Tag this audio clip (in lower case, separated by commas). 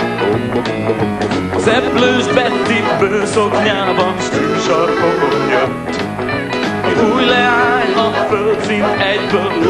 music, rock and roll